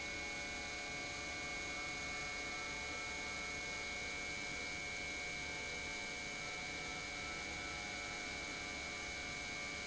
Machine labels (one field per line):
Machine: pump